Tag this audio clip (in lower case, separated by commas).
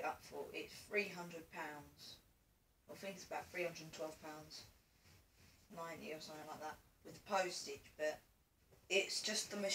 speech